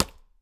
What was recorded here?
object falling